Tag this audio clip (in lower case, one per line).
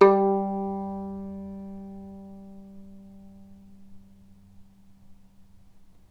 musical instrument
music
bowed string instrument